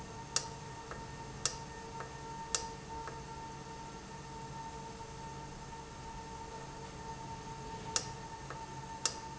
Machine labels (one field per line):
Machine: valve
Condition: normal